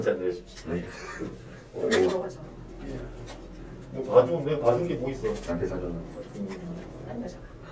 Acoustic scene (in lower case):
elevator